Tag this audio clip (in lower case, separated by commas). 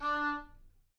wind instrument, music, musical instrument